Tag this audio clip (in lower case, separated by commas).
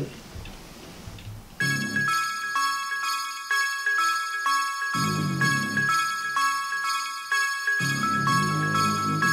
music